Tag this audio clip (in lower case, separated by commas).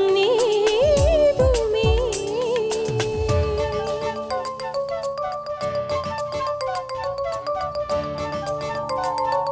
singing, inside a large room or hall, music